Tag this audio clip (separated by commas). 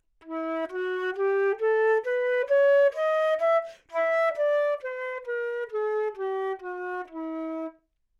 Musical instrument, Wind instrument, Music